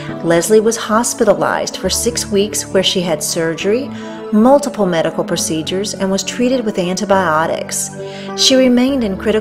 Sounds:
music
speech

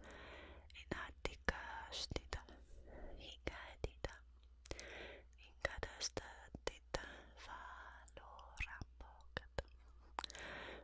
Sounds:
people whispering

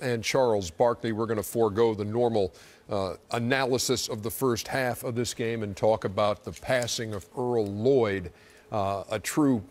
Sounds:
speech

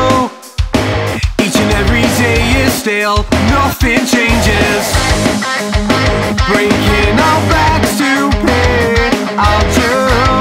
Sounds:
music

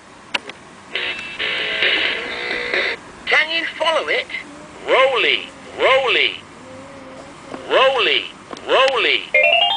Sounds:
music
speech

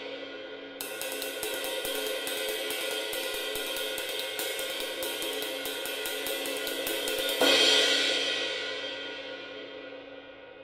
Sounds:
musical instrument
music

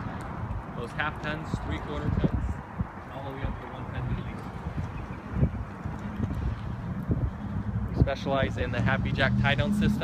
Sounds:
speech

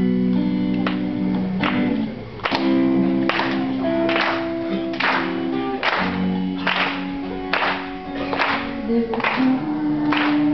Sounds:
electric guitar
guitar
musical instrument
music

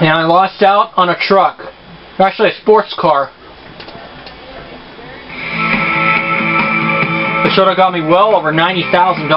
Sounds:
music
speech

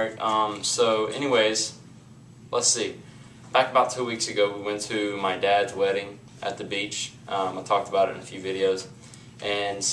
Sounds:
speech

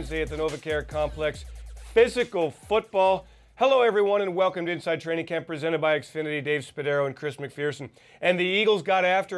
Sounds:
music
speech

